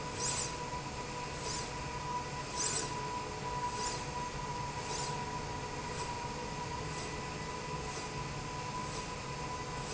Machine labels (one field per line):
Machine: slide rail